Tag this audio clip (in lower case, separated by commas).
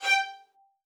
music, bowed string instrument, musical instrument